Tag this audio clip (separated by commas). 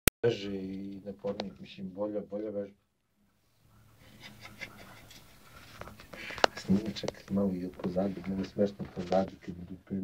inside a small room, Speech